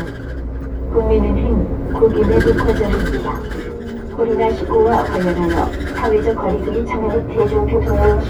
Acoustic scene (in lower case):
bus